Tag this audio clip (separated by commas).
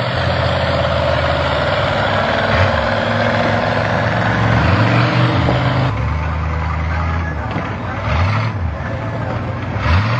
Vehicle, Truck